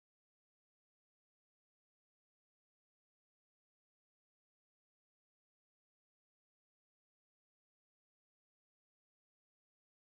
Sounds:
music, inside a large room or hall

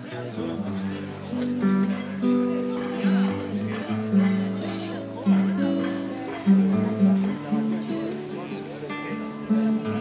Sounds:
music, speech

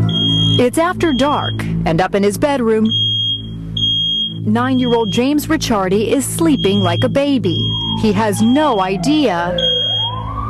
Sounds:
siren, police car (siren), emergency vehicle

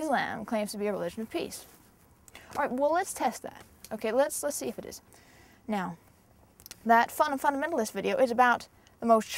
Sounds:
speech, female speech

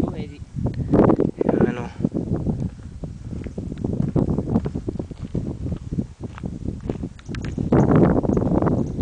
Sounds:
speech

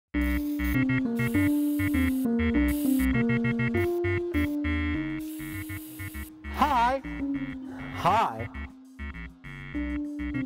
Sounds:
music, speech, inside a large room or hall

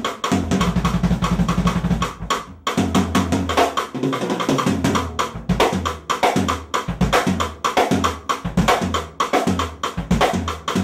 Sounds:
playing timbales

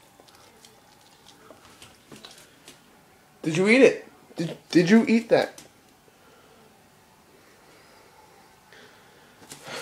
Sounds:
domestic animals, speech, animal, dog

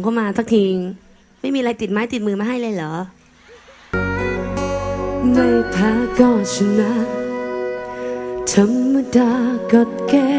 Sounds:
independent music, music, speech

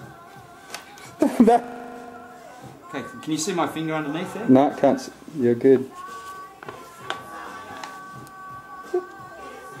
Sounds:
music, speech

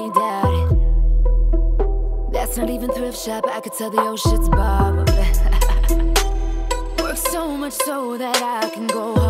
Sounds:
music, independent music

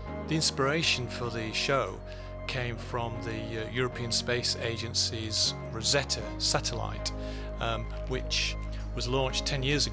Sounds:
speech, music

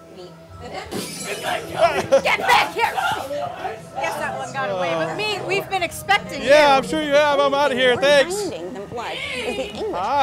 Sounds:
speech, music, chatter

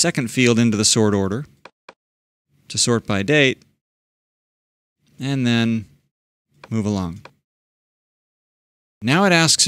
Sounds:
speech

